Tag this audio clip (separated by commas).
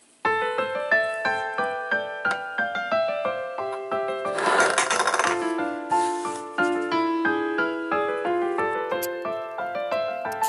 Music, Piano